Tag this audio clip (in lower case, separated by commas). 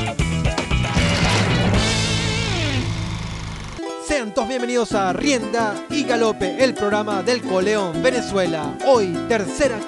music, speech